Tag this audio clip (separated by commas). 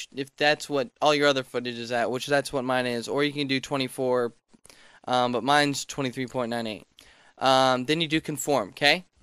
Speech